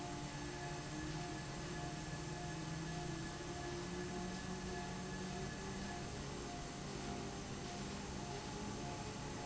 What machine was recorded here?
fan